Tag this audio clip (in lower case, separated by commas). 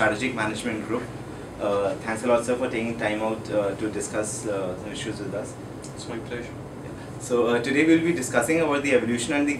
speech